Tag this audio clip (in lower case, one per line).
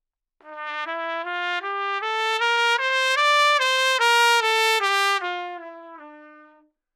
musical instrument
music
brass instrument
trumpet